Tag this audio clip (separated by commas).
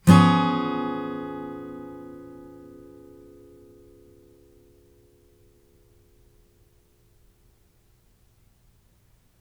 Guitar, Plucked string instrument, Musical instrument, Music, Acoustic guitar, Strum